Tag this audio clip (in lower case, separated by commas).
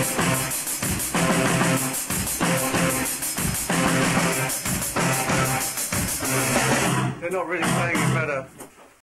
speech, music